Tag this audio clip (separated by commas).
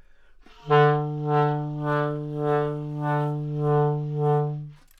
Wind instrument, Music, Musical instrument